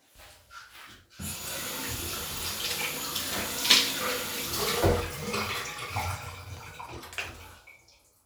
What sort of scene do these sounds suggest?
restroom